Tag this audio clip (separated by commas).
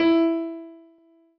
Piano, Music, Musical instrument, Keyboard (musical)